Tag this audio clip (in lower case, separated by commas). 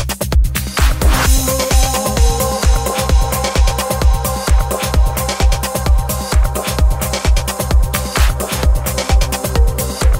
music